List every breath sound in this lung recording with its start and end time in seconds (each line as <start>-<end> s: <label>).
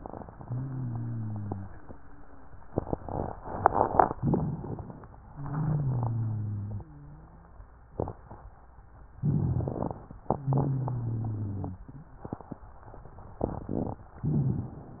0.34-2.51 s: exhalation
0.34-2.51 s: wheeze
4.16-5.12 s: inhalation
4.16-5.12 s: crackles
5.24-7.63 s: exhalation
9.15-10.12 s: inhalation
9.15-10.12 s: crackles
10.32-12.21 s: exhalation
10.32-12.21 s: wheeze
14.17-15.00 s: inhalation
14.17-15.00 s: crackles